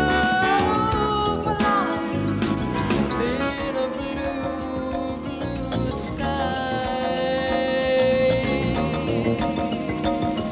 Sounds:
music

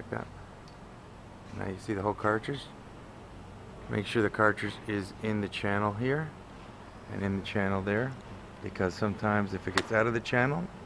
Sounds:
speech

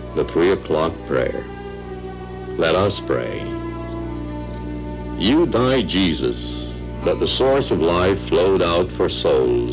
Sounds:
music, speech

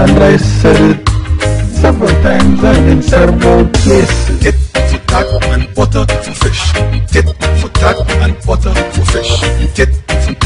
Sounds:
music, male singing

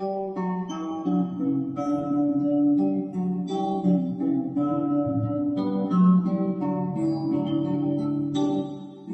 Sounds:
guitar, musical instrument, music, plucked string instrument, acoustic guitar, strum

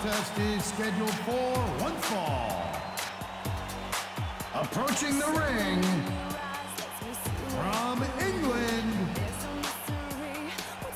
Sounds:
speech, music

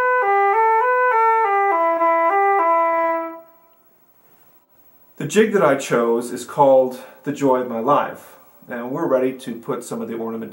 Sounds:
music, speech

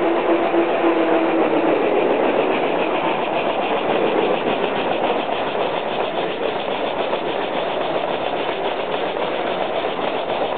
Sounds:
idling, engine

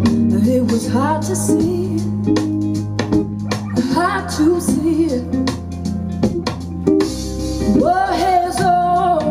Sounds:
music

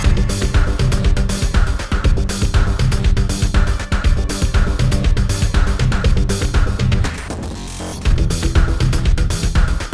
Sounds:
music

